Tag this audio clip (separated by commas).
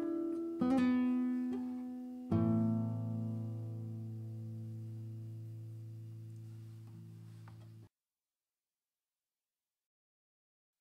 Music, Guitar, Musical instrument